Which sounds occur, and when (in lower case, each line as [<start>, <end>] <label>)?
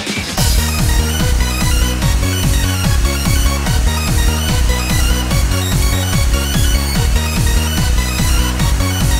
[0.00, 9.15] music